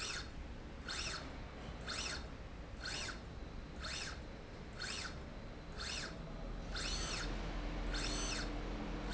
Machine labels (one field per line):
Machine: slide rail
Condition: normal